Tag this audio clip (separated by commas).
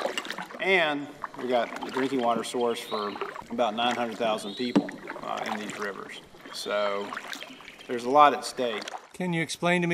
Speech, Vehicle, kayak, Water vehicle